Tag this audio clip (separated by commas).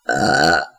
Burping